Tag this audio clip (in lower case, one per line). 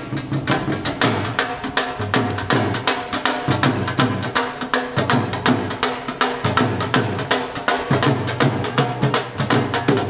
music